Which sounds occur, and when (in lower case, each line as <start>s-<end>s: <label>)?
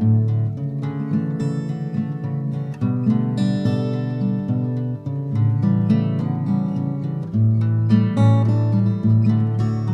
0.0s-9.9s: music